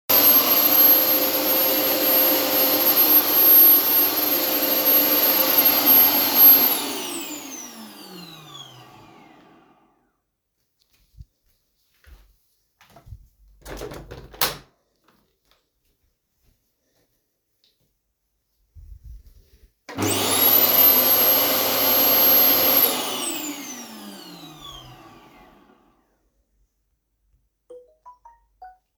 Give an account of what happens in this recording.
I stopped the running vacuum cleaner and opened the window. Then I turned the vacuum cleaner on for a short while. Finally, after it was off, I received a notification.